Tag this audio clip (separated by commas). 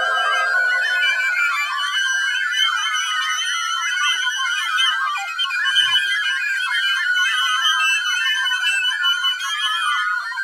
Music, Musical instrument